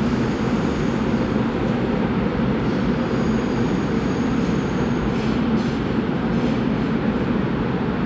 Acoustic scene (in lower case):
subway train